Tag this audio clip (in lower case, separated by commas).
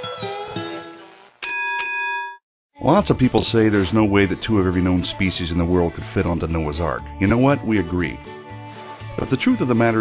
speech, ding-dong, music